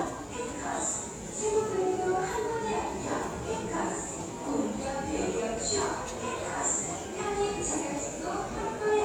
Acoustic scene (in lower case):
subway station